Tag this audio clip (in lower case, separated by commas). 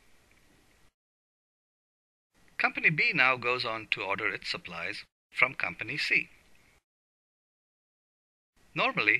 speech